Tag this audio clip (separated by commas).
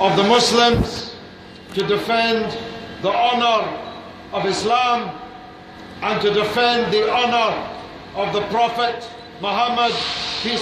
man speaking, Speech